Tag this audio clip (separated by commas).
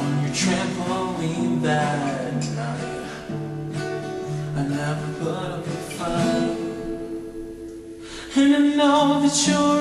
Music